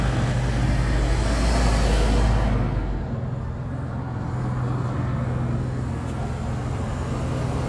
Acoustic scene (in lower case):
street